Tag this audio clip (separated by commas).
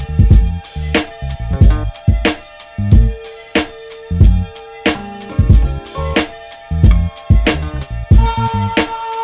Strum, Acoustic guitar, Guitar, Plucked string instrument, Music, Musical instrument